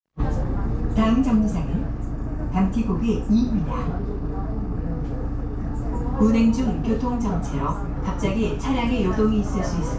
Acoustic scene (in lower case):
bus